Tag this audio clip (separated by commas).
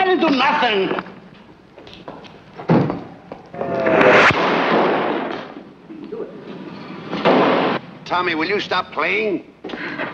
Speech